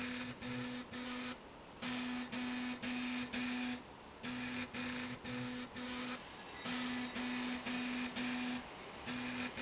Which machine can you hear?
slide rail